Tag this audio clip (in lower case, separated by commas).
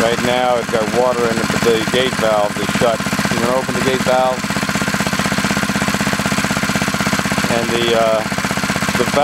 pump (liquid)